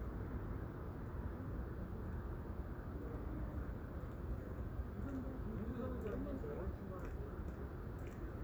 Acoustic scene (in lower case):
residential area